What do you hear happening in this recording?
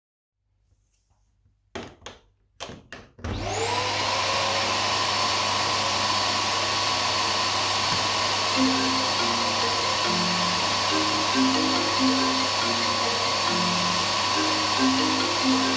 I plugged in my vacuum cleaner and started it but while i was cleaning i got a phonecall